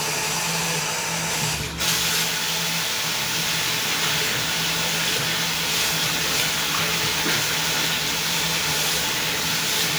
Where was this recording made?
in a restroom